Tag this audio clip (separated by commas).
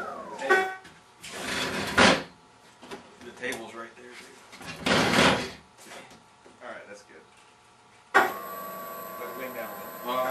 Speech